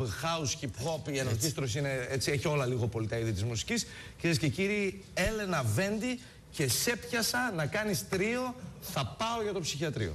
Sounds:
Speech

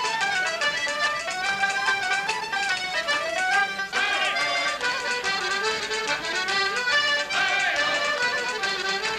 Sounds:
playing accordion

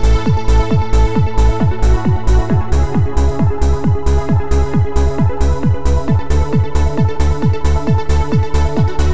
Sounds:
Music, Exciting music

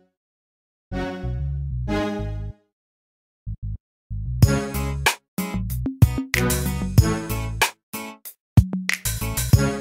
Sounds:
inside a large room or hall, Music

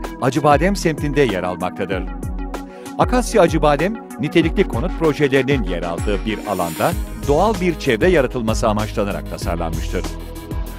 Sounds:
Music, Speech

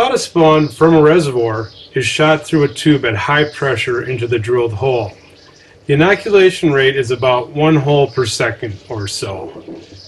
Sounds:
Speech

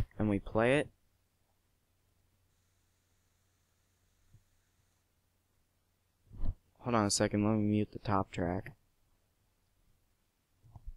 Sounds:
Speech, Silence

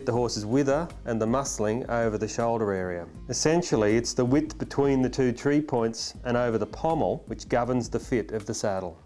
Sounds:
Speech

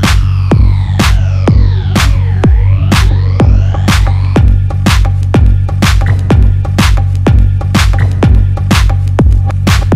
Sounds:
Music

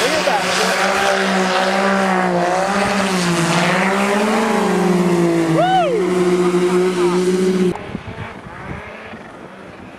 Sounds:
Vehicle

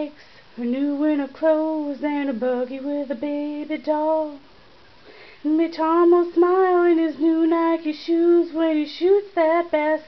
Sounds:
Female singing

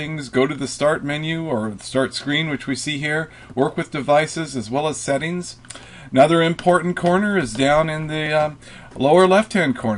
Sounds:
Speech

